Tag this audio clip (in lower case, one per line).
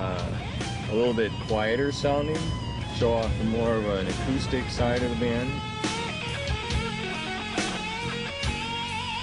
music
speech
pop music